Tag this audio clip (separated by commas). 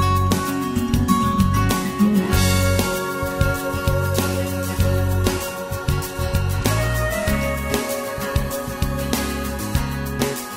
pumping water